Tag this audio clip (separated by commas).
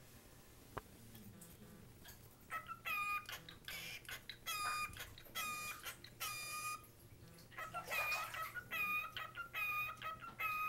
Domestic animals, Bird